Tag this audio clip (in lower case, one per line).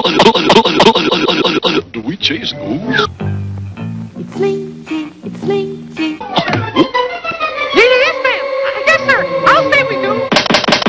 speech
music